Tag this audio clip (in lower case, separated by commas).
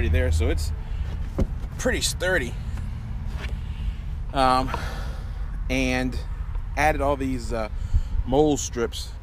speech